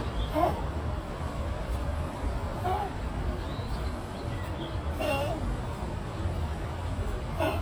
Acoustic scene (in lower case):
park